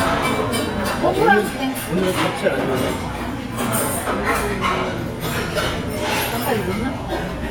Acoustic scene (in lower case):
crowded indoor space